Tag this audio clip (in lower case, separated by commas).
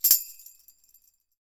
musical instrument, music, tambourine, percussion